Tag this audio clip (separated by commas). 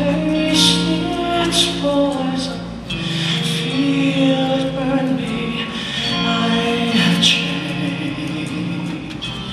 Female singing, Music